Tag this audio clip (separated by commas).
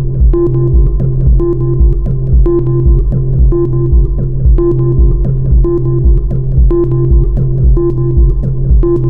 Music, Techno